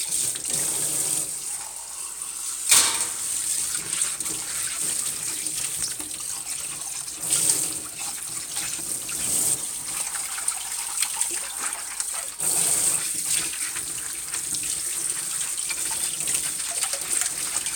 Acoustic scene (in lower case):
kitchen